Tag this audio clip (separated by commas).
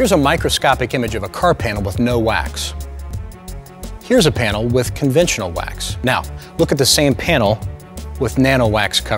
Speech, Music